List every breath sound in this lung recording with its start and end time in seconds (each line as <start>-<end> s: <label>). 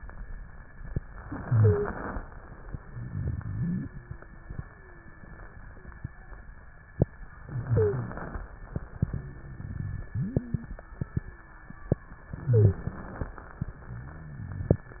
1.20-2.24 s: inhalation
1.48-1.92 s: wheeze
2.90-3.88 s: exhalation
2.90-3.88 s: rhonchi
3.70-4.56 s: wheeze
4.70-5.56 s: wheeze
5.66-6.36 s: wheeze
7.42-8.46 s: inhalation
7.66-8.10 s: wheeze
9.04-9.74 s: wheeze
10.06-10.76 s: wheeze
11.12-11.82 s: wheeze
12.30-13.34 s: inhalation
12.42-12.86 s: wheeze